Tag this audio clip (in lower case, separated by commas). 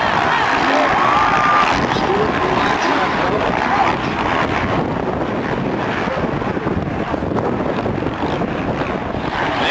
vehicle, wind noise (microphone), race car, speech